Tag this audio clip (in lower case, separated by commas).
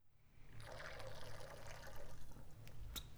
water